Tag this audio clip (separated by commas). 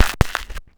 Crackle